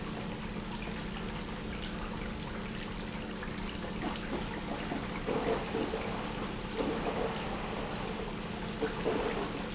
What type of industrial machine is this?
pump